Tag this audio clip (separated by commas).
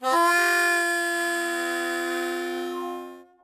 Music, Musical instrument, Harmonica